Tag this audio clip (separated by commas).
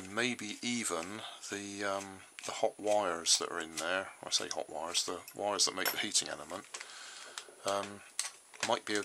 Speech